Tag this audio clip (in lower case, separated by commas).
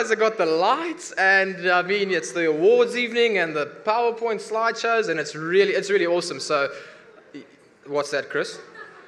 man speaking, narration, speech